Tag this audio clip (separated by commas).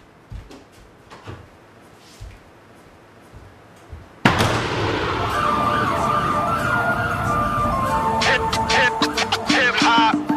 Hip hop music, Music, Emergency vehicle, Rapping